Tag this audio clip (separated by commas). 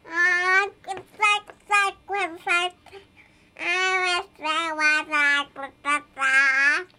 Human voice, Speech